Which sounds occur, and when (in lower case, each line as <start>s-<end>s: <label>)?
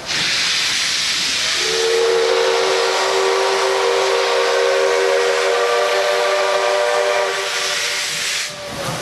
0.0s-9.0s: train
1.5s-7.5s: train whistle
5.3s-5.5s: generic impact sounds